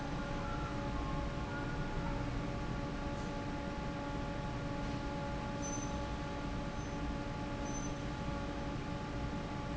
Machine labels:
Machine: fan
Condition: normal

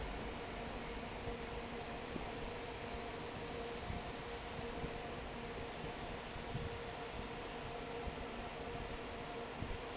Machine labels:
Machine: fan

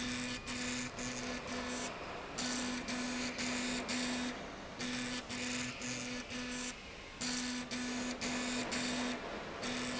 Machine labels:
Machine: slide rail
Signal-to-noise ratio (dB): 0 dB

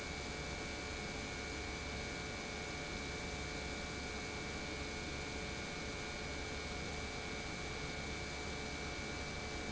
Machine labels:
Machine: pump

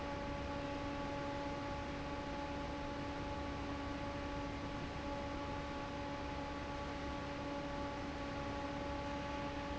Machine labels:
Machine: fan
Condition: normal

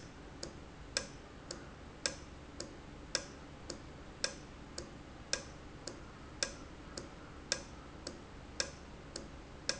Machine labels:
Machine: valve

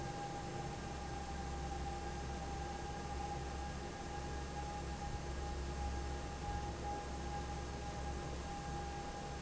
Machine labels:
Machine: fan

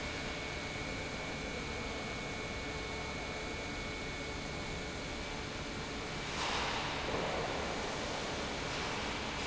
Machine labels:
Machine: pump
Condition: normal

